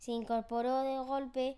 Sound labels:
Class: speech